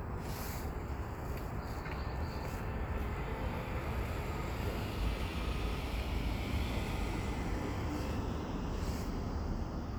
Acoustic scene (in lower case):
street